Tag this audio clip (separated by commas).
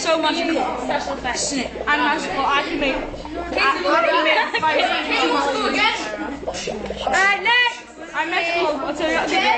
Speech